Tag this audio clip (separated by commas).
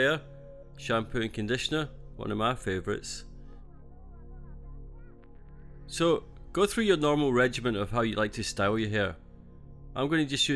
Speech